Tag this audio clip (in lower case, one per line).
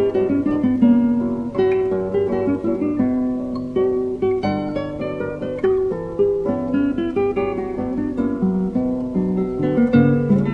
strum
music
plucked string instrument
musical instrument
guitar